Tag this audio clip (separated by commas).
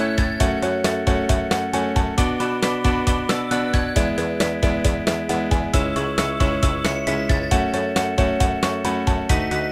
Rhythm and blues, Blues, Music